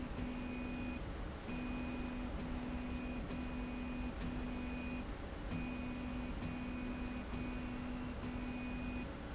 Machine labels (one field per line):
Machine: slide rail